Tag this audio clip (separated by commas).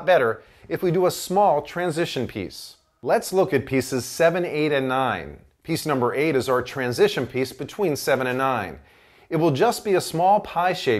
Speech